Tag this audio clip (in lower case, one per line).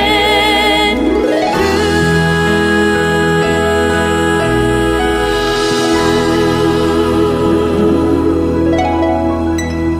music